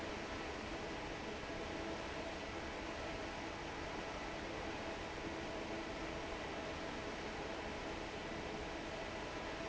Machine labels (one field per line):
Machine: fan